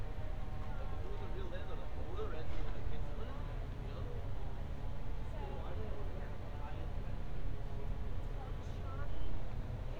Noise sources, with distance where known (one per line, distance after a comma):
person or small group talking, far